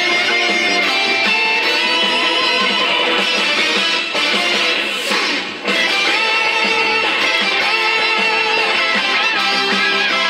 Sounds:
music, country

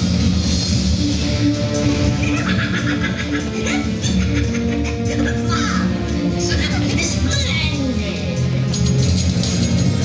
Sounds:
speech, music

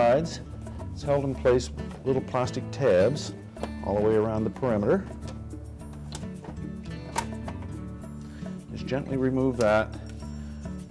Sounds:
music, speech

